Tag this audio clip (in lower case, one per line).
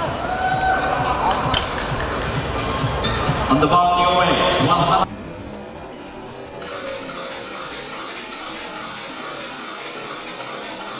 speech
inside a public space
music